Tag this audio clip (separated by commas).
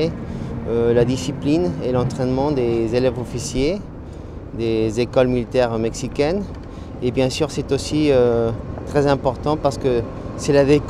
Speech